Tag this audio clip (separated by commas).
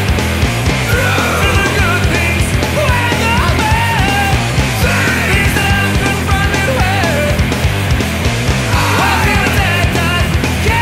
Music